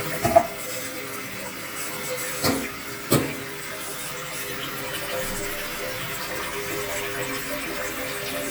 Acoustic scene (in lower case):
restroom